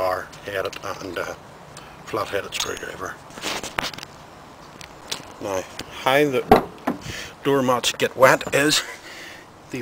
A man is speaking and opens a door